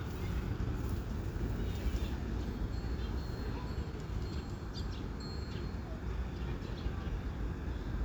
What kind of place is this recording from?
residential area